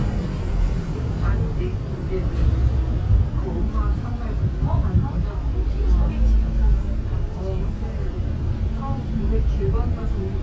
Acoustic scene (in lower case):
bus